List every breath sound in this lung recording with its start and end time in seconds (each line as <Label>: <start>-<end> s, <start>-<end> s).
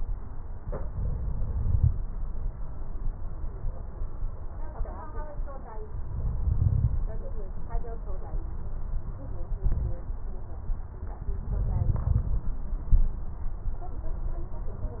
Inhalation: 0.86-1.96 s, 6.06-6.98 s, 11.24-12.45 s